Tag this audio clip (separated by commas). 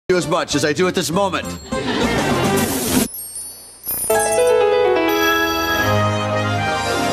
Speech, Music, Television